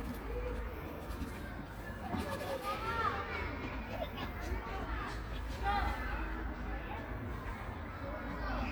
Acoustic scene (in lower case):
park